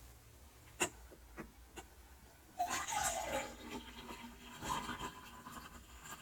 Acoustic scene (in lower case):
kitchen